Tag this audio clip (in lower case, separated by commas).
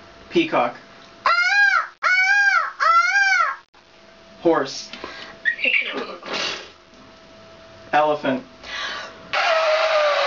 speech